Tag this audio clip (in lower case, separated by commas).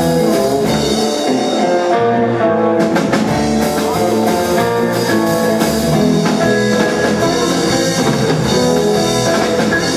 steelpan, music